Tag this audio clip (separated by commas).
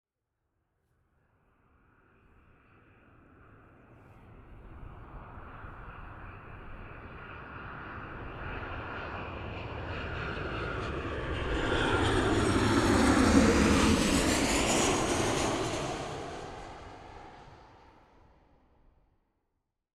Vehicle, Aircraft